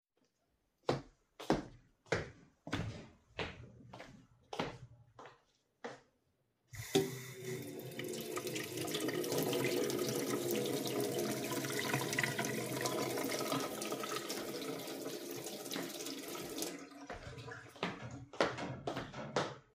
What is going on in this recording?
I walked into the kitchen and turned on the water.